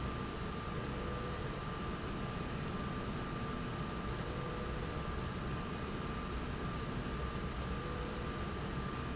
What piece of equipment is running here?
slide rail